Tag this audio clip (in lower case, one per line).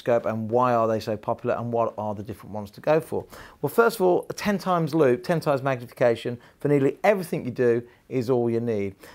speech